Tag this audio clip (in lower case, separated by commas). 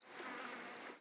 insect, wild animals, animal